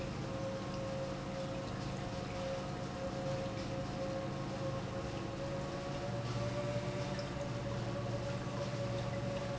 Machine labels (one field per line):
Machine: pump